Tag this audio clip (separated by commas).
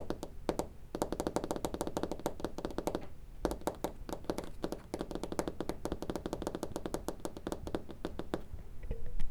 Tap